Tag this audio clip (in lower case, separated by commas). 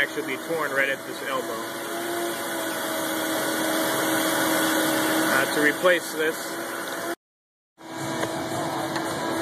engine, speech, music, vehicle